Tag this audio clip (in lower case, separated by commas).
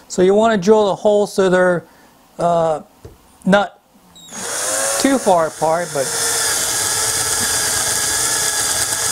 drill, power tool, tools